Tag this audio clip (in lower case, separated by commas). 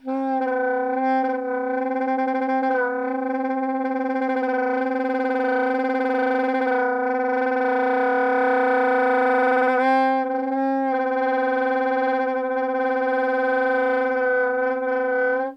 wind instrument, music, musical instrument